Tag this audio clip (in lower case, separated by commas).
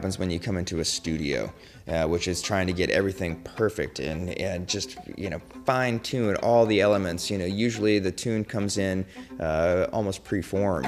music, speech